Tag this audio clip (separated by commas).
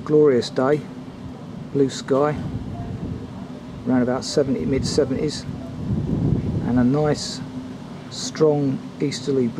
Speech